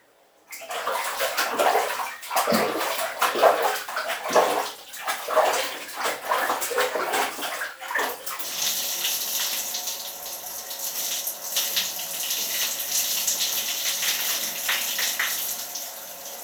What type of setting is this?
restroom